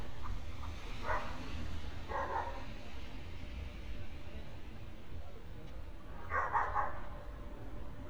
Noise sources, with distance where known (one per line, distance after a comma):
dog barking or whining, far